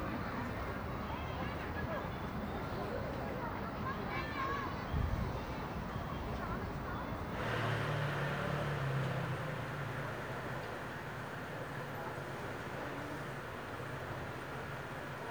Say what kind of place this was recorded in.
residential area